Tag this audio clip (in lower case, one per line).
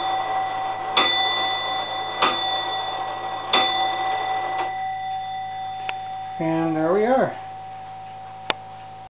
tick-tock
speech